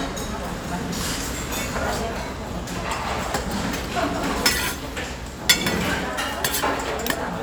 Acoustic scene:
restaurant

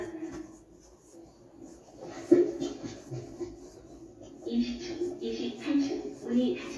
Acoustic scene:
elevator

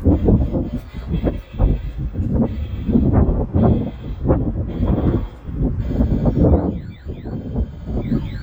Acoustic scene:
residential area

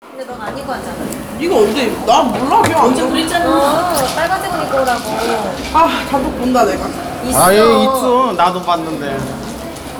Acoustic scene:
cafe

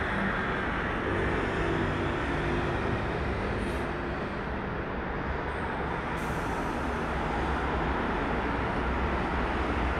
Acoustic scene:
street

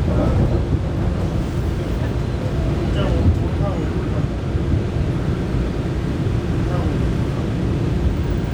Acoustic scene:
subway train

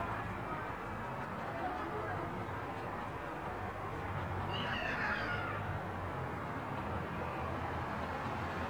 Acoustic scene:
residential area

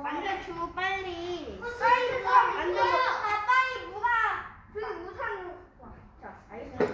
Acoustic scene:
crowded indoor space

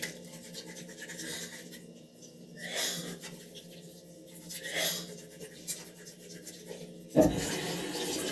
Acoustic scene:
restroom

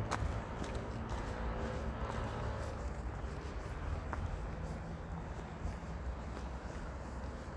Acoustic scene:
street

